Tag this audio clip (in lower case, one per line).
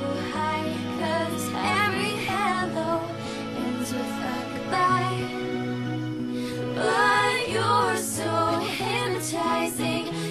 music
female singing